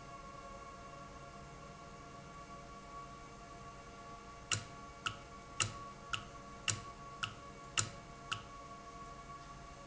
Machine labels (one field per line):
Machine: valve